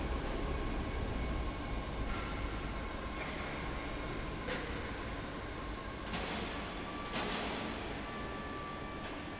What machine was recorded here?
fan